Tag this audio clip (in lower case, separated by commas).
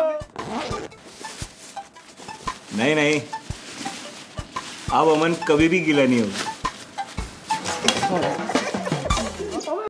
speech, music